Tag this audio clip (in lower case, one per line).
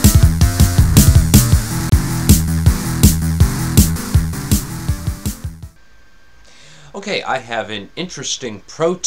sampler